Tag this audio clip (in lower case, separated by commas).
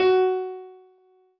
music, keyboard (musical), piano, musical instrument